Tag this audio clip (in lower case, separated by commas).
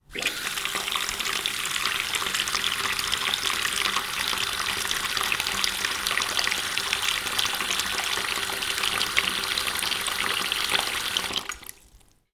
water tap, home sounds